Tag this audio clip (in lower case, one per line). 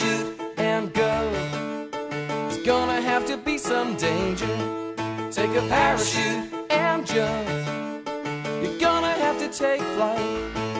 music